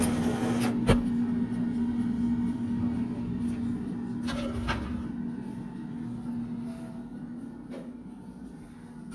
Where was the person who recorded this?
in a kitchen